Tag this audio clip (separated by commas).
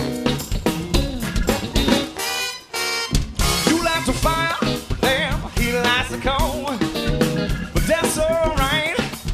Music